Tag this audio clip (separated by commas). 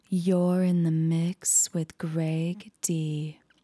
Human voice, Female speech, Speech